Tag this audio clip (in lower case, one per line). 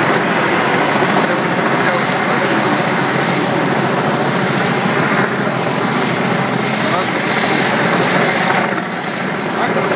speech